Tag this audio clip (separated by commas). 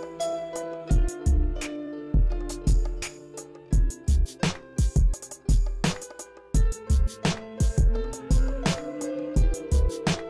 Music